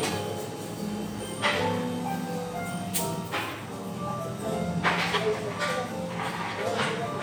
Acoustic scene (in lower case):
cafe